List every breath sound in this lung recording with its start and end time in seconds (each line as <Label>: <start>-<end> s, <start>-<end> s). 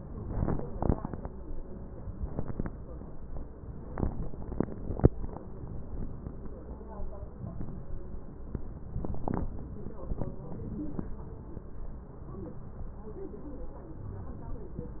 Inhalation: 7.33-8.01 s
Wheeze: 7.33-8.01 s